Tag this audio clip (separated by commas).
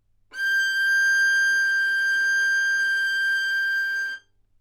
Bowed string instrument, Musical instrument, Music